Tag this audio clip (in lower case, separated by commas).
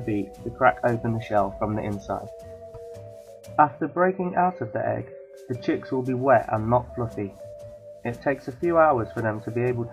speech, music